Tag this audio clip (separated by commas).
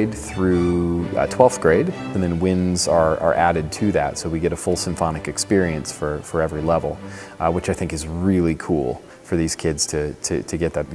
Orchestra, Speech, Music